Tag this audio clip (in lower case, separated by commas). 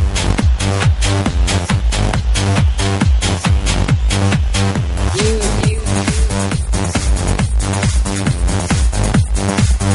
music, techno, electronic music